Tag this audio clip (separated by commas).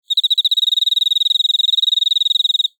Cricket, Animal, Insect, Wild animals